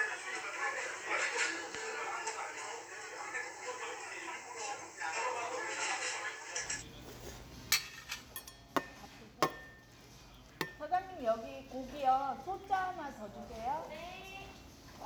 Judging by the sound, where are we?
in a restaurant